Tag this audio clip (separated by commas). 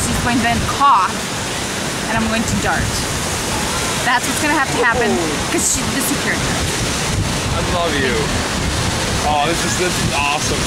Speech